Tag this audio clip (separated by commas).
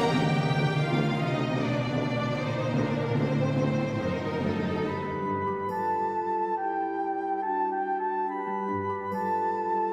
Music